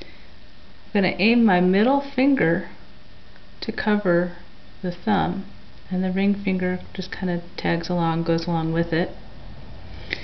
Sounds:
speech

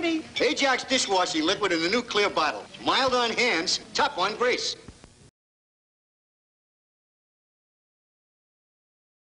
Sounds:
speech

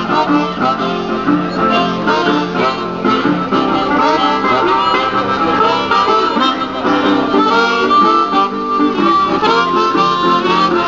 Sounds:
plucked string instrument
music
guitar
musical instrument
strum
electric guitar

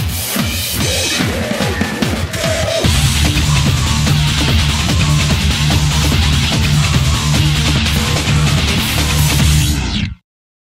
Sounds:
music

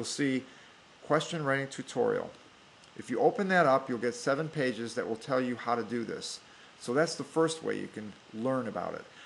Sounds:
speech

